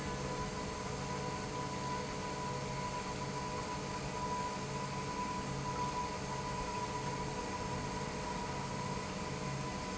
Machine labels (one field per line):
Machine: pump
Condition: normal